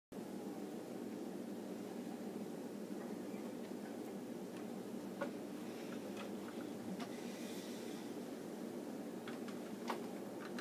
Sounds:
inside a small room
silence

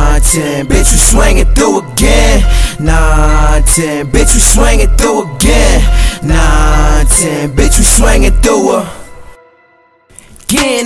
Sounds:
music

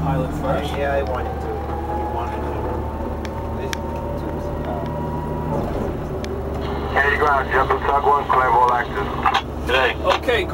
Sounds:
speech
vehicle
emergency vehicle

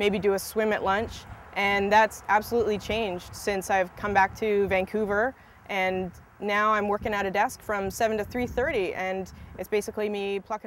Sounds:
speech

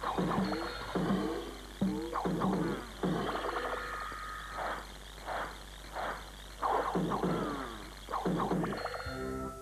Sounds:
music

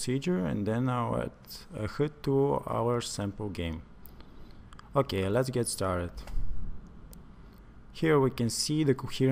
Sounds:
speech

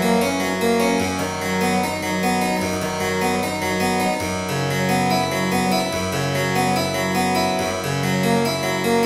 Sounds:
playing harpsichord

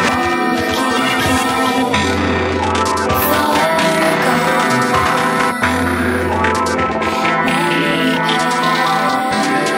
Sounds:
music
outside, rural or natural

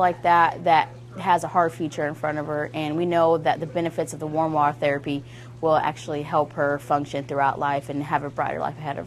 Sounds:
speech

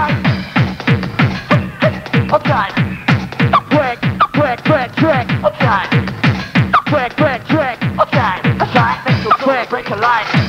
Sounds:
electronic music
music
techno

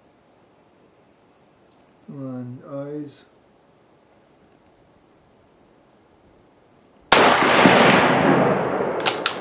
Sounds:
speech
outside, rural or natural

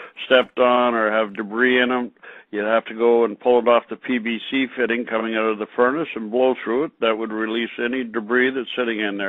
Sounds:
speech

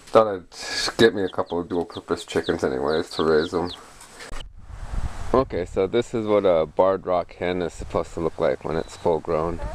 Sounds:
speech
chicken

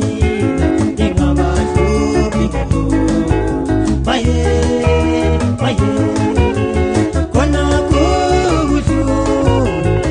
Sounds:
music

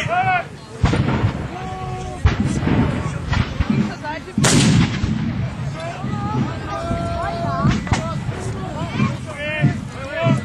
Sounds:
gunshot
artillery fire

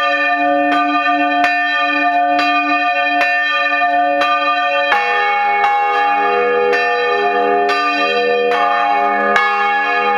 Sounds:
bell

